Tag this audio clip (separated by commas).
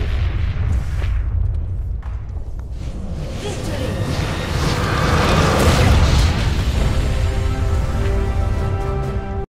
Explosion, Speech, Burst, Music